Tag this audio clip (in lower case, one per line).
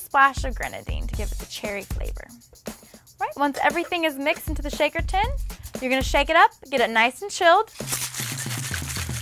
speech
inside a small room
music